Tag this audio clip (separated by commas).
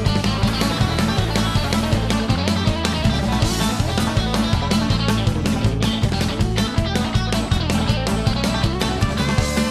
Music